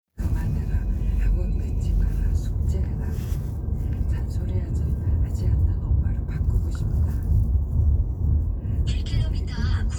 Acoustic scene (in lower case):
car